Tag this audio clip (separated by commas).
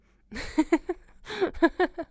Human voice, Laughter